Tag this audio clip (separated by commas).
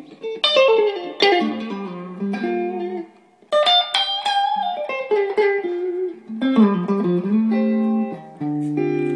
Music